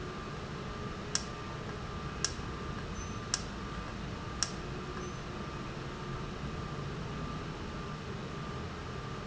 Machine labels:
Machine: valve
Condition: normal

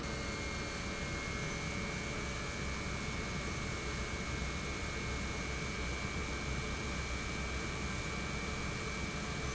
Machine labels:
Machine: pump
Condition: normal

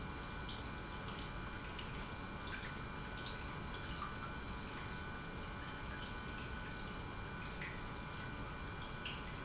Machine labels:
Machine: pump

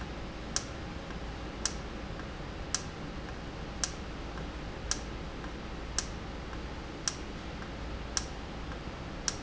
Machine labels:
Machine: valve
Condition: normal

